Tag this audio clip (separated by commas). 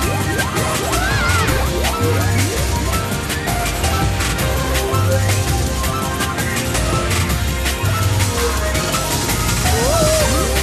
Music